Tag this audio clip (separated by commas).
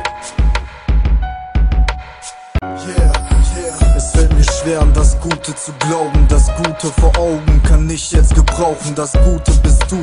Music